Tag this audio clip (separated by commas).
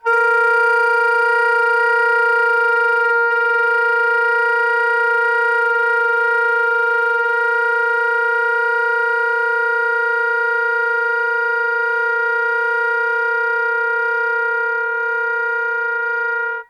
Musical instrument, Music, Wind instrument